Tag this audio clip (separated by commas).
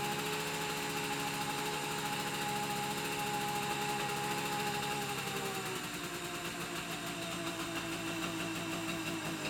Motorcycle, Motor vehicle (road), Engine, Vehicle